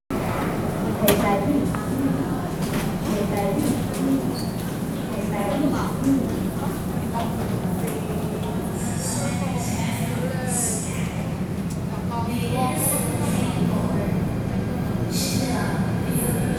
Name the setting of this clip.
subway station